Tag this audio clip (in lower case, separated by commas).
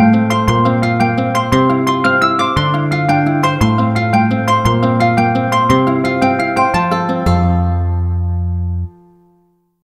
ringtone, music